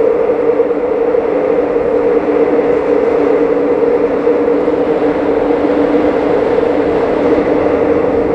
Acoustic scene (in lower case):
subway train